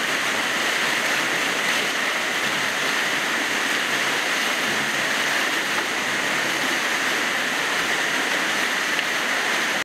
Water streaming loudly